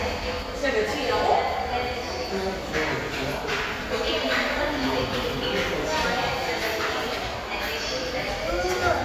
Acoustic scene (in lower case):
crowded indoor space